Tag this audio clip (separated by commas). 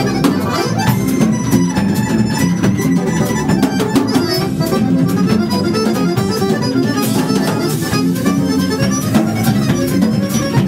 Accordion